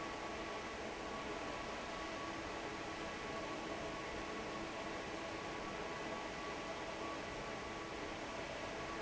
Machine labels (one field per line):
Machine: fan